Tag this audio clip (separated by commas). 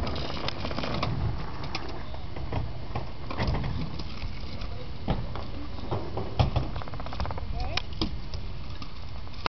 Speech